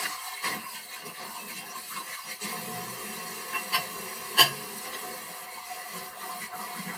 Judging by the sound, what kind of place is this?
kitchen